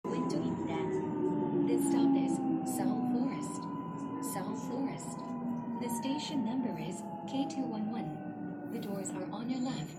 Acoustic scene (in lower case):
subway train